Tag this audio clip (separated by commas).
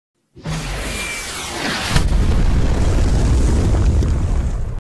Explosion